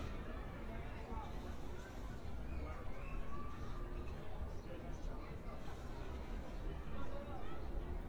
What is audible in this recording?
person or small group talking